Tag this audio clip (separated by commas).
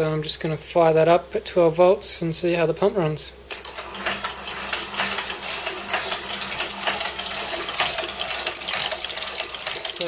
Speech